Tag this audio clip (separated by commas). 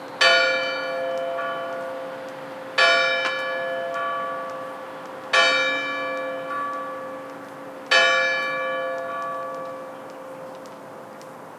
Church bell, Bell